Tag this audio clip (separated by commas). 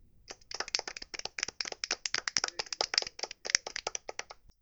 Clapping, Hands